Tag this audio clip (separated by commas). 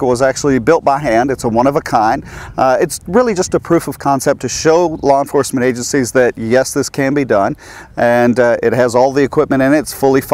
Speech